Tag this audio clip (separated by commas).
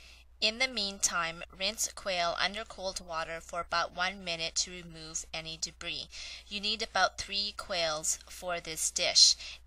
Speech